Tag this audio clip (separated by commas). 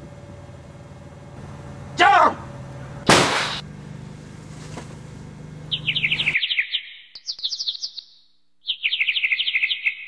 outside, rural or natural, Speech